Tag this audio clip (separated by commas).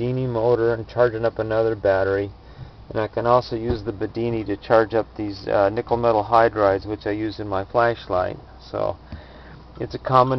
Speech